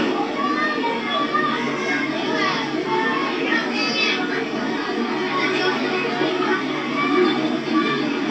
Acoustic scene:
park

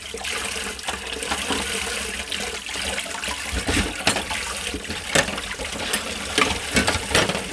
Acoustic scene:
kitchen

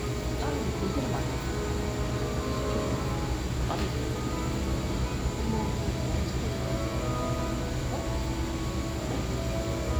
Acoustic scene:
cafe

